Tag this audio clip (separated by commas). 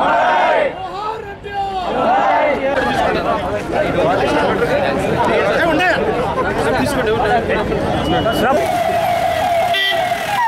man speaking, Speech